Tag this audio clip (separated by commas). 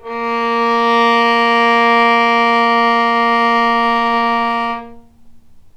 Music, Bowed string instrument, Musical instrument